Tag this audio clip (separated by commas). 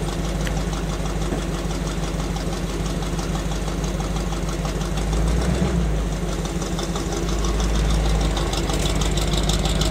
Car, Vehicle